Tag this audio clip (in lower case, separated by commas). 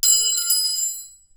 glass, clink